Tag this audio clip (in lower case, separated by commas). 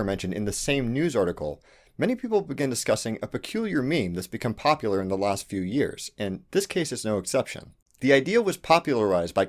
speech